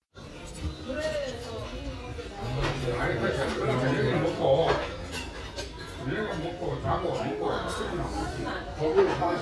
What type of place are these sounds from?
restaurant